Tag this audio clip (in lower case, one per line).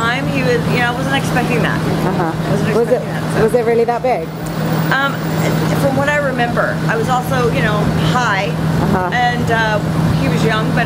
speech